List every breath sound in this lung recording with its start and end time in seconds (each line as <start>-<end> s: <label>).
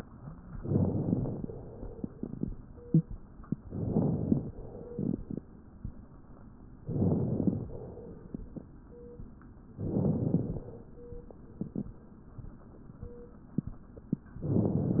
0.55-1.48 s: inhalation
0.55-1.48 s: crackles
3.64-4.57 s: inhalation
3.64-4.57 s: crackles
6.83-7.76 s: inhalation
6.83-7.76 s: crackles
9.73-10.66 s: inhalation
9.73-10.66 s: crackles
14.40-15.00 s: inhalation
14.40-15.00 s: crackles